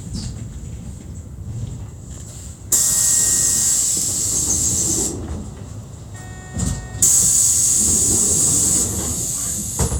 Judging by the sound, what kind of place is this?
bus